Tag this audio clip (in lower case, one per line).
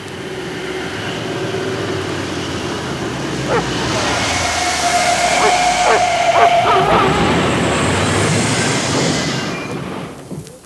white noise